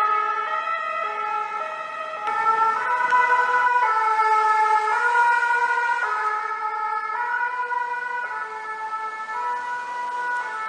An ambulance driving by